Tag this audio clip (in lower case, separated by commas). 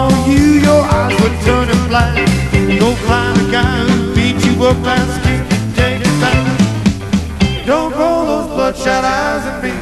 music, roll, jazz